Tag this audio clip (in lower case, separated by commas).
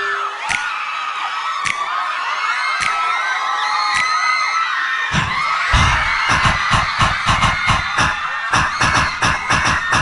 music